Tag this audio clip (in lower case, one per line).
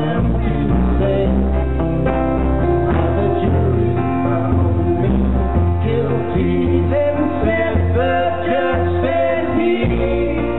music